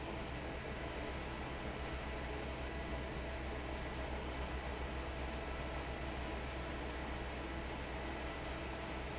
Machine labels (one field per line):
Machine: fan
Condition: normal